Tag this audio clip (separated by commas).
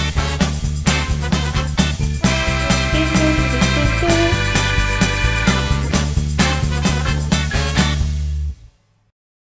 Music, Speech